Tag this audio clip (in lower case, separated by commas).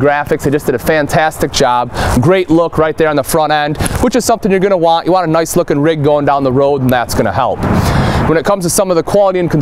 speech